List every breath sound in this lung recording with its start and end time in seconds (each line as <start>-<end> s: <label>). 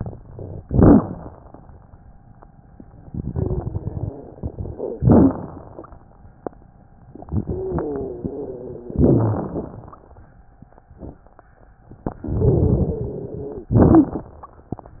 3.01-4.44 s: inhalation
3.29-4.27 s: wheeze
4.42-7.02 s: exhalation
4.42-7.02 s: crackles
6.98-8.94 s: inhalation
7.28-9.90 s: wheeze
8.94-10.87 s: exhalation
11.78-13.70 s: inhalation
12.54-14.21 s: wheeze
13.67-14.59 s: exhalation